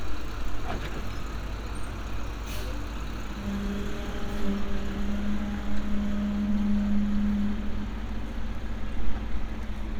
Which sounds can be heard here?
large-sounding engine